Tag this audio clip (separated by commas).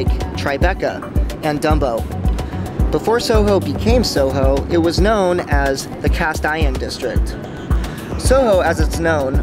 Speech, Music